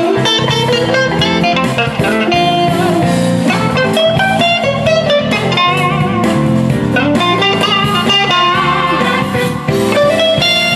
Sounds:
music

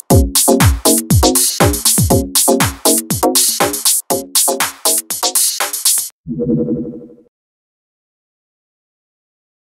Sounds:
music
house music
electronic music

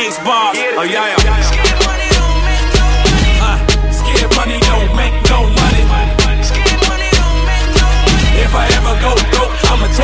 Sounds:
pop music
independent music
music

